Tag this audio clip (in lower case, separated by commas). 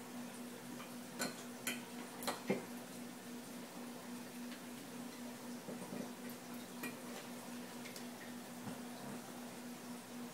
silence